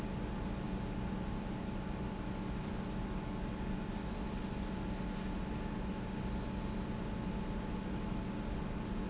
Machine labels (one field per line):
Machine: pump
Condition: normal